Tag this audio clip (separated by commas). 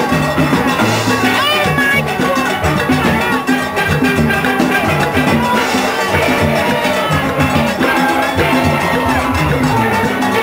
Music, Drum, Steelpan, Speech